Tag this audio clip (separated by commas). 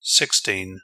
Human voice, man speaking, Speech